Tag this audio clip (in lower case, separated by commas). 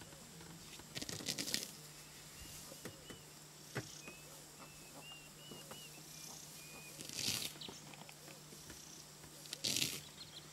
animal